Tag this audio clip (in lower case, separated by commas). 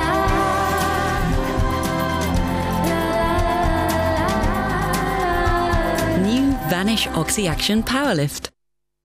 music